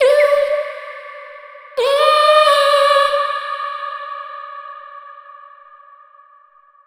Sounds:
singing, human voice

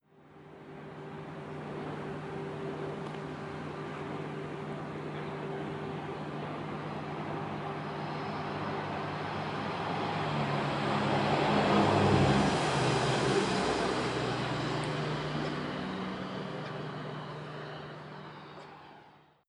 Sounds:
vehicle, train, rail transport

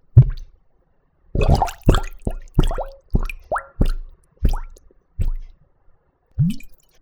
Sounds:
sink (filling or washing), liquid, water, domestic sounds, gurgling

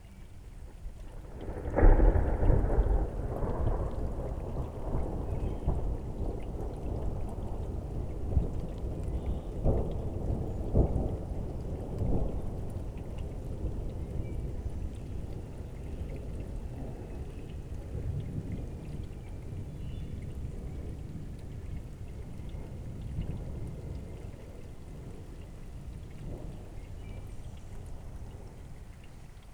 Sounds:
thunderstorm, thunder

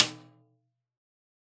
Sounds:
drum, music, percussion, snare drum, musical instrument

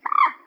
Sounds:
bird, animal, wild animals

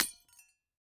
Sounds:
glass, shatter

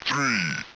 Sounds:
speech, human voice, speech synthesizer

